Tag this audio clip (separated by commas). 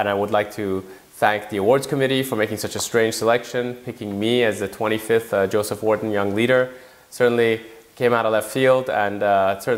man speaking, Narration, Speech